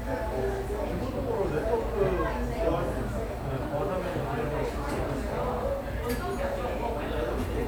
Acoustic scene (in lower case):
cafe